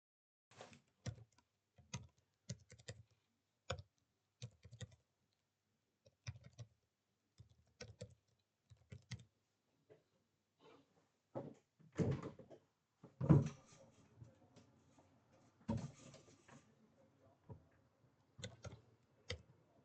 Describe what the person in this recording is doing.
I was typing on my keybord then i opened the window.